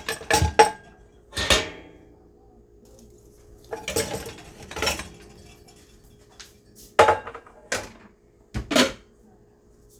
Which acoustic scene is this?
kitchen